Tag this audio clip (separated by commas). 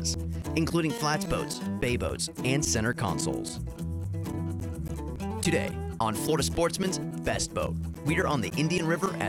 Music, Speech